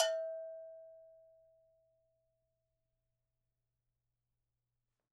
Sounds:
bell

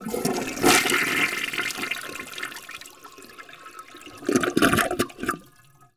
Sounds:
gurgling
toilet flush
home sounds
water

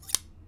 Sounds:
scissors
domestic sounds

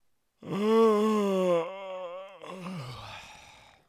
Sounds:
human voice

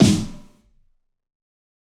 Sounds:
drum
music
musical instrument
snare drum
percussion

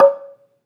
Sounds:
mallet percussion
musical instrument
music
marimba
percussion

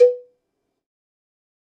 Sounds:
bell
cowbell

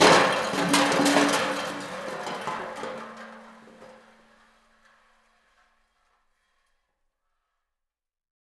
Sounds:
crushing

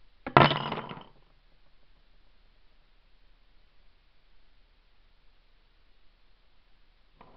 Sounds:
domestic sounds
coin (dropping)

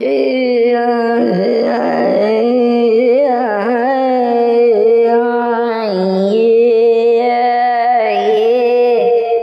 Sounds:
singing
human voice

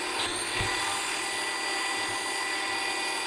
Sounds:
domestic sounds

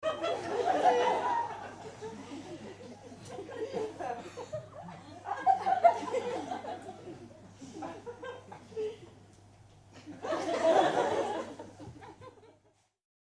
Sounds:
human voice
laughter

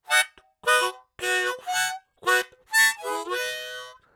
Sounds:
music
musical instrument
harmonica

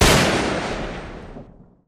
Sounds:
gunfire
explosion

